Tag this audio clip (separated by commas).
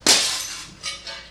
Shatter, Glass